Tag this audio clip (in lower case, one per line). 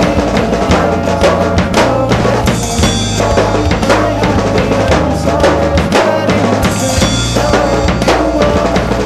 music